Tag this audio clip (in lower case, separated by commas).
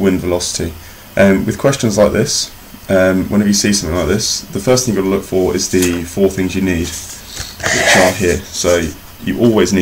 speech